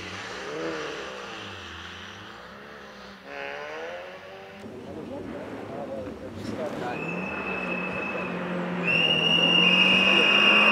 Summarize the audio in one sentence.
A vehicle revving its engine and taking off